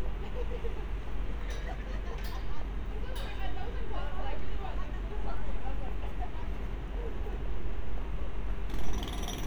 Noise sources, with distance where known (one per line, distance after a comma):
unidentified impact machinery, near
person or small group talking, near